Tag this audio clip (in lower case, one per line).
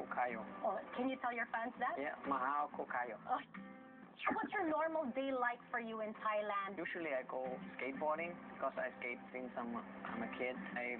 music
speech